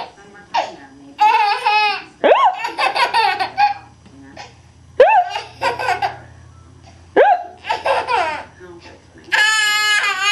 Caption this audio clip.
Someone makes a baby laugh with their hiccup sounds